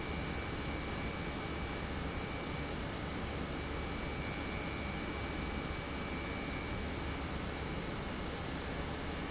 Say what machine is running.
pump